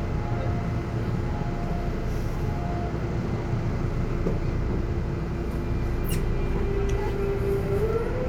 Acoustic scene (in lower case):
subway train